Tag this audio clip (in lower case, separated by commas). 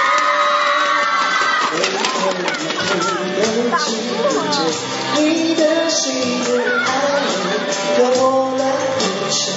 music, male singing, rapping, speech